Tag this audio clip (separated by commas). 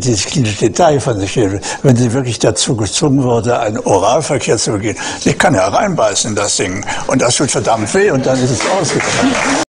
Speech